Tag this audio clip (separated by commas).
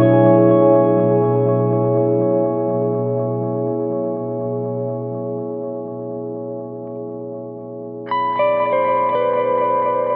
Music